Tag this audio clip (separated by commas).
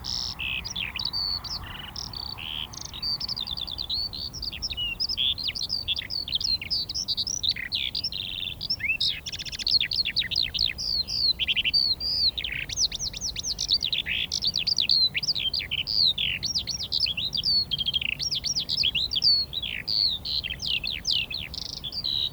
Bird, Bird vocalization, Animal, Wild animals